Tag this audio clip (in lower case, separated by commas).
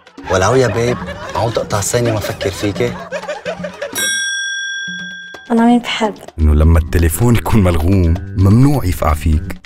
speech, music